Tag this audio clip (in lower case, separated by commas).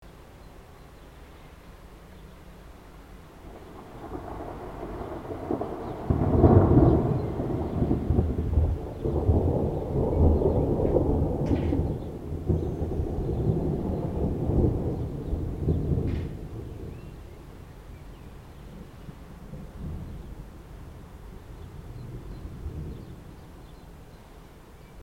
thunderstorm, thunder